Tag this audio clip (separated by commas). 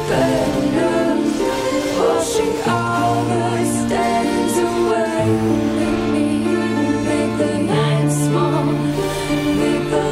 Music